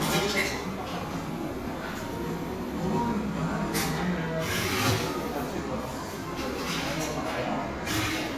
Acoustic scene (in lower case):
crowded indoor space